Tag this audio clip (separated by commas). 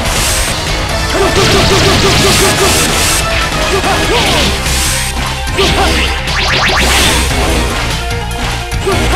Music